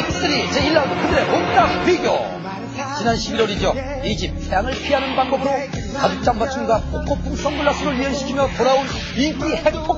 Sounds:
Music, Speech

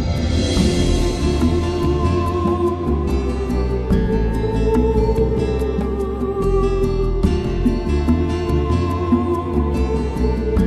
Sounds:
Music

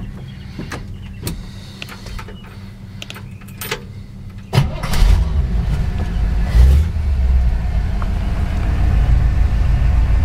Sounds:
Vehicle, Car

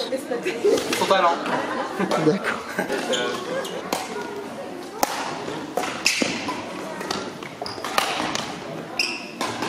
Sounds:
playing badminton

